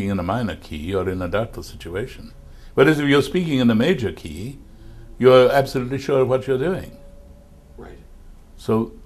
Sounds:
Speech, Narration, Male speech

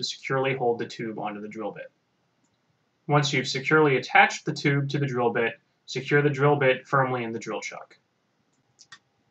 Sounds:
Speech

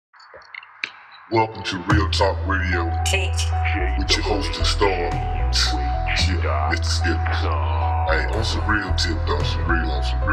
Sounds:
Music, Speech

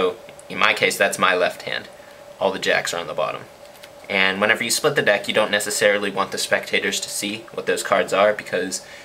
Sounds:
Speech

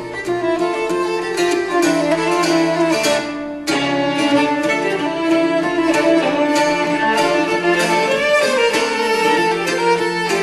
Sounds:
Plucked string instrument, fiddle, Bowed string instrument, Musical instrument, Music, Guitar, String section, Classical music

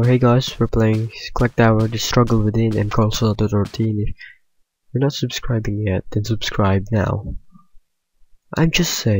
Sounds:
Speech

